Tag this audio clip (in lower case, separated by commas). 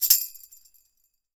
tambourine, percussion, music, musical instrument